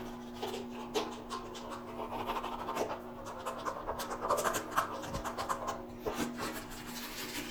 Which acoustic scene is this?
restroom